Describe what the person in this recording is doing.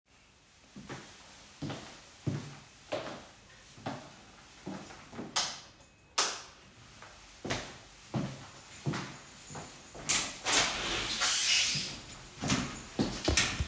The recorder moves across the room with footsteps. A light switch is pressed and the window is opened or closed shortly after. The actions form a natural domestic sequence.